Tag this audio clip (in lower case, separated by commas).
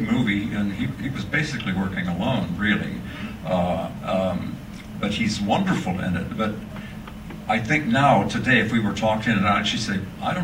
speech